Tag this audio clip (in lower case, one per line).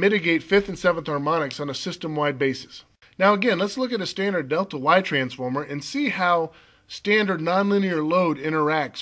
speech